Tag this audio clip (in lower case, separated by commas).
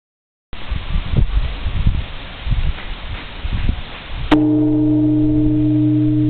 jingle bell